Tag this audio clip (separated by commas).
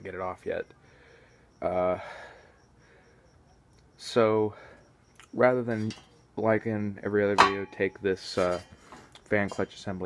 Speech